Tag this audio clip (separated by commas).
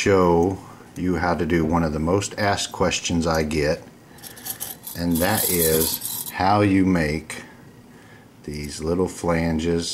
Tools, Speech